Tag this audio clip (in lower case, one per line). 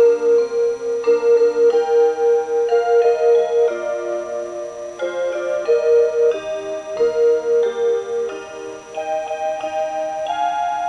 music